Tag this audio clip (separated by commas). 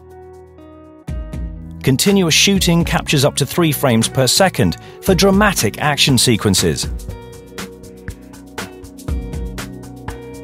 Speech, Music